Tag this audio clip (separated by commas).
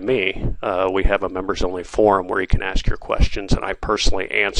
Speech